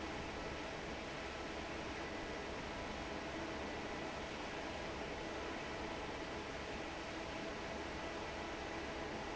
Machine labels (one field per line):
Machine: fan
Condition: normal